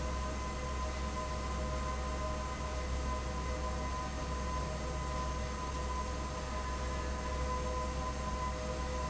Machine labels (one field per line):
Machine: fan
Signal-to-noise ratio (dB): -6 dB